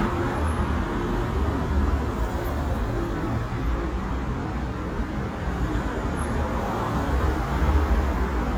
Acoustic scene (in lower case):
street